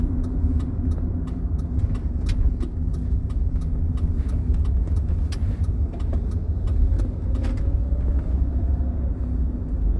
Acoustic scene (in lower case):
car